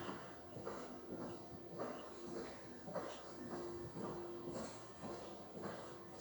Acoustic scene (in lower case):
elevator